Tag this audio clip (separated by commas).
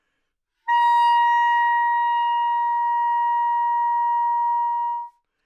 Music, Wind instrument, Musical instrument